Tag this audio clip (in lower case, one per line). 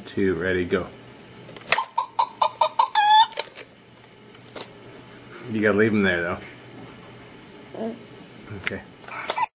speech